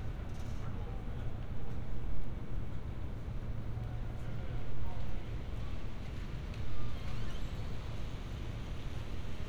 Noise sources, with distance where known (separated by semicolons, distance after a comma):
engine of unclear size, near